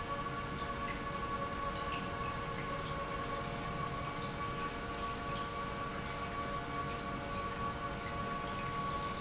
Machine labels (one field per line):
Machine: pump